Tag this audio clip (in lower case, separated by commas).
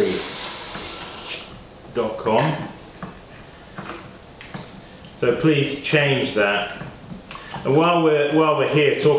speech, inside a small room